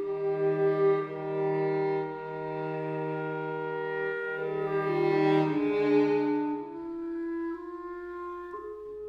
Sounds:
cello
violin
music
musical instrument

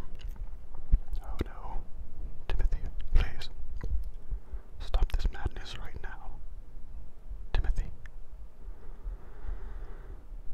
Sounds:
speech

